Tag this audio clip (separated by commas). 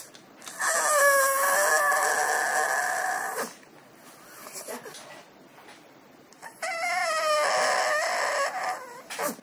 Domestic animals, Dog, Animal